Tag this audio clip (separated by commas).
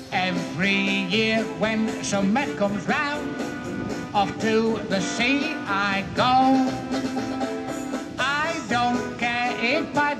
Happy music, Music, Rock and roll